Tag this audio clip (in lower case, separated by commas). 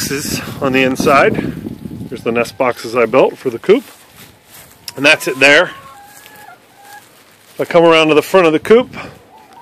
speech, chicken